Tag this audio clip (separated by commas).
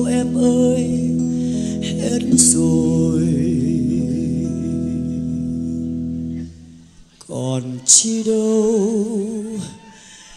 Music, Bass guitar, Singing